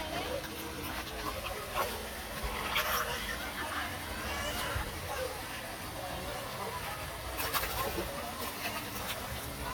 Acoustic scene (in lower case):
park